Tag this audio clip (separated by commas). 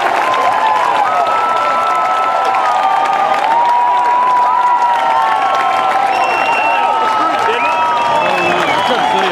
Speech